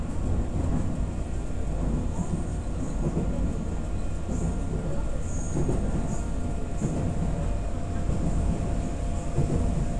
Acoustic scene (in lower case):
subway train